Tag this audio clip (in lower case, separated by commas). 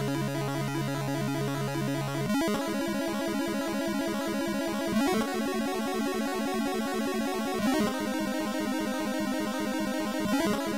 music, video game music